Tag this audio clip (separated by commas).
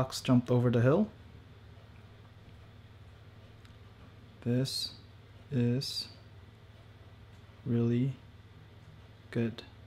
Speech